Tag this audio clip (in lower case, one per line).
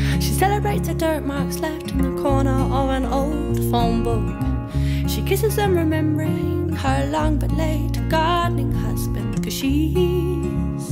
music